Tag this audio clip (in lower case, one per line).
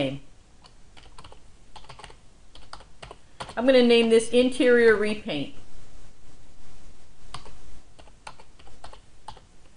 computer keyboard
speech
typing